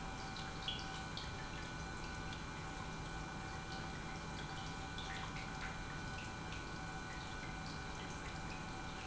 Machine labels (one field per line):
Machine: pump